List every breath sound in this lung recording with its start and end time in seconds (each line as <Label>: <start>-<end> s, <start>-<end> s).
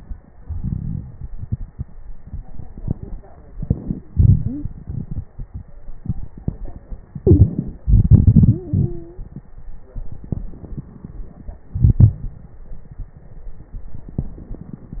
Inhalation: 0.32-2.02 s, 3.48-4.08 s, 7.12-7.83 s, 9.96-11.65 s
Exhalation: 4.06-5.32 s, 7.83-9.92 s, 11.67-13.50 s
Wheeze: 0.39-1.07 s
Stridor: 4.36-4.72 s, 8.47-9.33 s
Crackles: 3.48-4.08 s, 9.96-11.65 s, 11.67-13.50 s